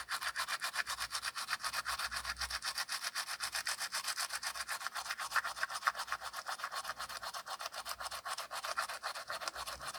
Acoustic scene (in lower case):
restroom